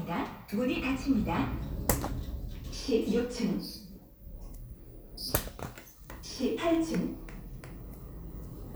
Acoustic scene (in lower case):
elevator